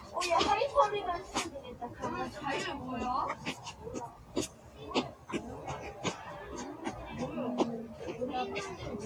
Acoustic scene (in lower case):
residential area